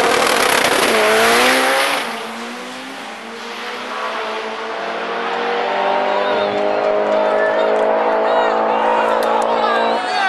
High-speed car passing by followed by cheers from the audience